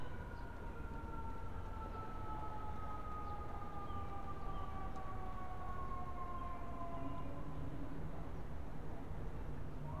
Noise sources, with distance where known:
siren, far

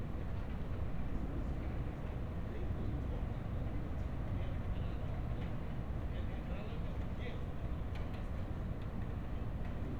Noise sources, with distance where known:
engine of unclear size; person or small group talking, near

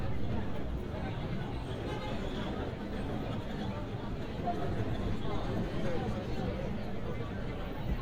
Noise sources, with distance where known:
unidentified human voice

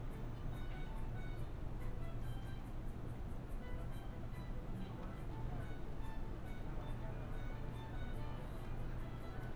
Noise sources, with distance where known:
music from a fixed source, far

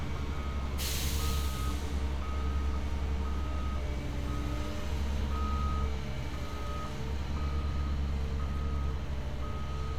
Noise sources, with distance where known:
engine of unclear size, near; reverse beeper

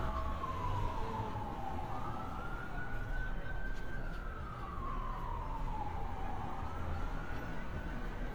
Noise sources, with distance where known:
siren, far

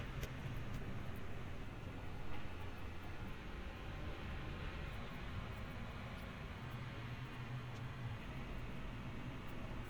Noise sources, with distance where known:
background noise

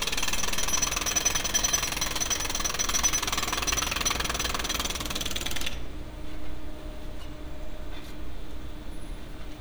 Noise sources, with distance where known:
unidentified impact machinery, near

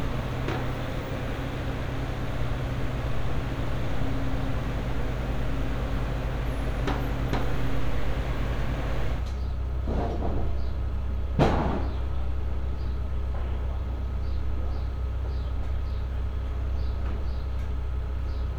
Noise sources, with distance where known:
non-machinery impact, near

